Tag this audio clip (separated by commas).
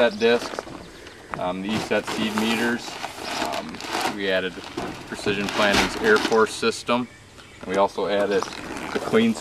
Speech